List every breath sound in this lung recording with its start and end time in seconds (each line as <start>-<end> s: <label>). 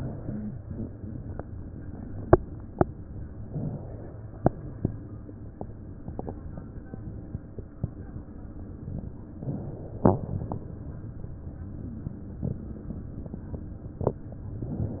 3.44-5.03 s: inhalation
9.30-10.73 s: inhalation